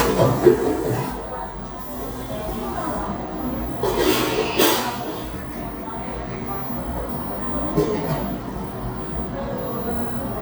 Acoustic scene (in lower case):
cafe